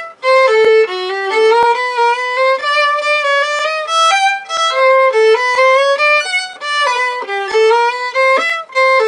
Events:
[0.00, 9.05] background noise
[0.01, 9.05] music

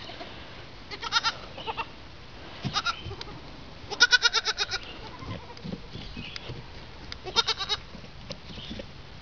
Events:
[0.00, 0.25] bleat
[0.00, 0.27] bird call
[0.00, 9.21] wind
[0.87, 1.31] bleat
[1.48, 1.84] bleat
[1.54, 1.86] bird call
[2.46, 3.17] bird call
[2.58, 3.30] goat
[2.61, 3.44] bleat
[3.13, 3.25] tick
[3.83, 5.56] bleat
[4.59, 7.19] goat
[4.65, 5.01] bird call
[4.76, 5.39] tick
[5.53, 5.62] tick
[5.89, 6.51] bird call
[6.31, 6.40] tick
[7.07, 7.18] tick
[7.22, 7.78] bleat
[7.25, 7.56] bird call
[7.82, 8.86] goat
[8.25, 8.37] tick
[8.53, 8.83] bird call

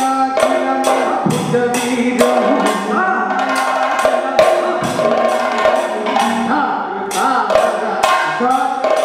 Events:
[0.00, 9.04] male singing
[0.00, 9.04] music

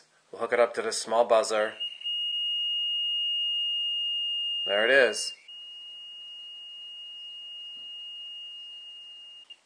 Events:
[0.00, 9.65] mechanisms
[0.30, 1.75] man speaking
[1.56, 9.65] brief tone
[4.64, 5.29] man speaking
[7.11, 7.28] surface contact
[7.58, 7.85] surface contact
[8.44, 8.83] surface contact
[8.97, 9.16] surface contact
[9.46, 9.53] beep

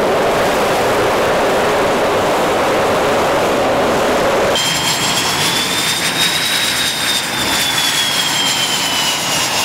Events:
[0.00, 9.64] wind
[0.01, 9.64] aircraft

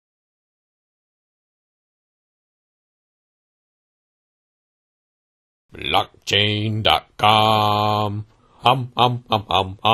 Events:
[5.66, 9.93] mechanisms
[5.67, 6.05] male speech
[6.23, 7.02] male speech
[7.19, 8.25] male speech
[8.26, 8.60] breathing
[8.62, 9.93] male speech

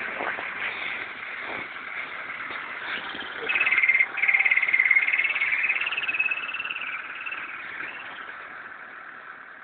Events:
[0.00, 9.44] medium engine (mid frequency)
[0.10, 0.51] walk
[0.58, 1.01] surface contact
[1.41, 1.71] walk
[2.37, 2.63] walk

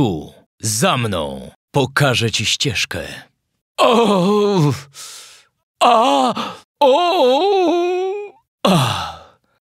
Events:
[0.00, 0.41] male speech
[0.58, 1.51] male speech
[1.69, 3.28] male speech
[1.70, 3.57] background noise
[3.76, 5.62] background noise
[3.77, 4.74] male speech
[4.70, 5.52] breathing
[5.77, 6.30] male speech
[6.33, 6.63] breathing
[6.78, 8.42] male speech
[8.65, 9.56] breathing
[8.65, 8.89] male speech

